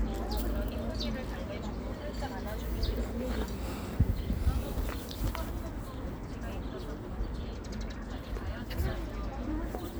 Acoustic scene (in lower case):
park